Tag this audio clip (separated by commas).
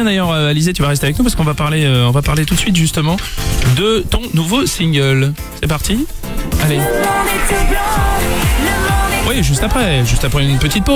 Music, Speech